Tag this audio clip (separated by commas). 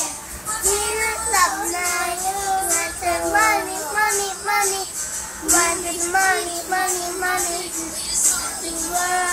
Child singing, Music